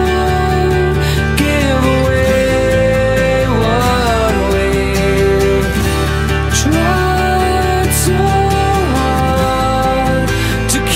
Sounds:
music

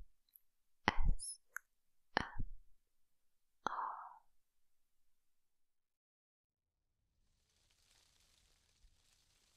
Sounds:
wind rustling leaves

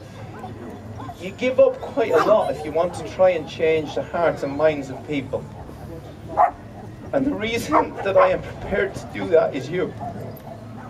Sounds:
speech, dog, bow-wow

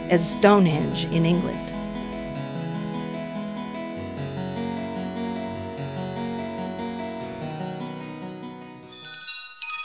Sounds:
music, harpsichord, speech

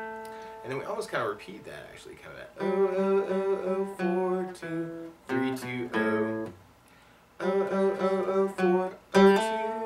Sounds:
string section, speech, music

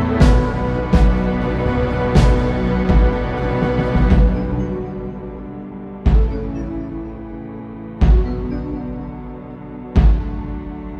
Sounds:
music

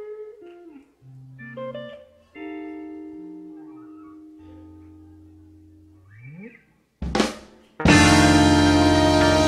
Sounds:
percussion, drum, drum kit, snare drum, rimshot

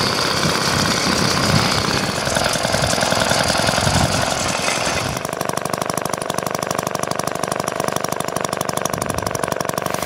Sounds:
lawn mowing, engine, lawn mower

